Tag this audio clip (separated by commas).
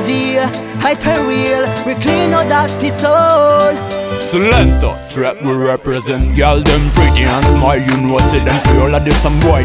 Music